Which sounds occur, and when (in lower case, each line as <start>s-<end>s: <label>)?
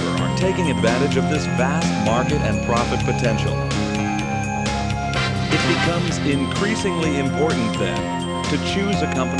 0.0s-9.3s: music
0.3s-3.6s: male speech
5.4s-8.1s: male speech
8.4s-9.3s: male speech